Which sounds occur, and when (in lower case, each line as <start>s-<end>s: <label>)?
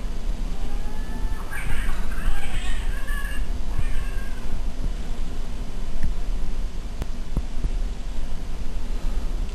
0.0s-9.5s: mechanisms
0.4s-3.4s: caterwaul
0.8s-4.6s: wind noise (microphone)
3.7s-4.4s: caterwaul
3.7s-3.8s: tick
4.4s-4.5s: tick
4.8s-4.9s: wind noise (microphone)
6.0s-6.0s: tick
7.3s-7.4s: tick
7.6s-7.7s: tick
9.3s-9.5s: wind noise (microphone)